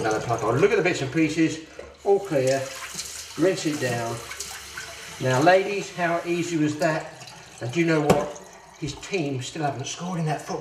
A man talking as faucet water is flowing while water drains down into a pipe followed by plastic thumping on a solid surface